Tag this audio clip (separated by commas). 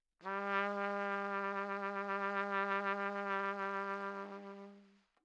Trumpet, Brass instrument, Music, Musical instrument